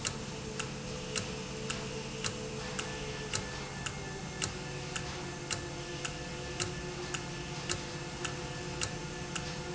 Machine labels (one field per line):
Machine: valve